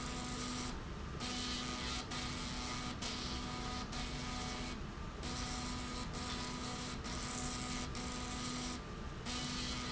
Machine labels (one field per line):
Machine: slide rail